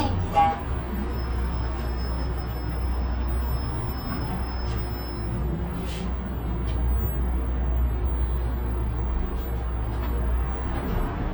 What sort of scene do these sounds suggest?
bus